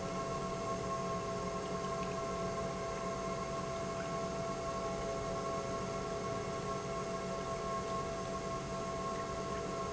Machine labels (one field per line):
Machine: pump